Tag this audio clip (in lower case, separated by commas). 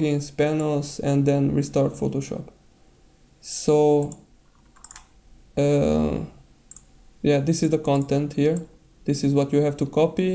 speech, computer keyboard